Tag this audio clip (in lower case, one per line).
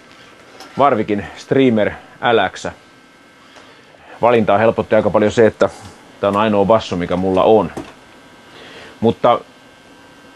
speech